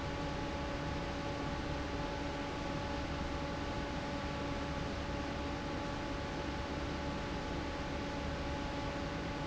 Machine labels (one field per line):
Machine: fan